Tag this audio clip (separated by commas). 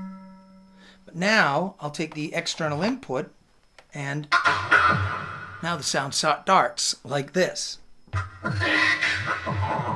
Speech, Music